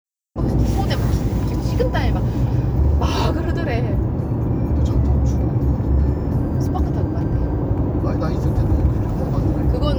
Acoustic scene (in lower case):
car